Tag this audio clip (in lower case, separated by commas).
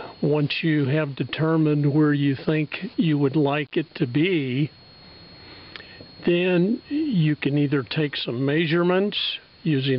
speech